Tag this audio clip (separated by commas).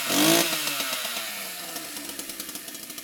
vroom, Engine